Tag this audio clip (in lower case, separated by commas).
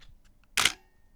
mechanisms, camera